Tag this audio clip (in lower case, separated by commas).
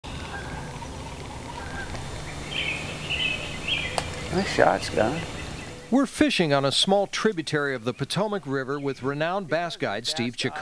speech, outside, rural or natural, animal